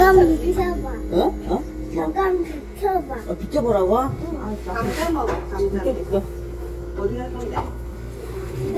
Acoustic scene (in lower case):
restaurant